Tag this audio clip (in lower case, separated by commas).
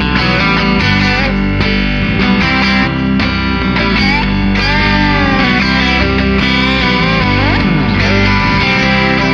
music, musical instrument, plucked string instrument, guitar, rock music, effects unit